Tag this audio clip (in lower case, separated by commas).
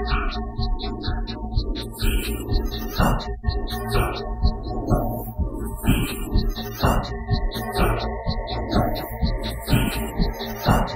synthesizer, music, techno, electronic music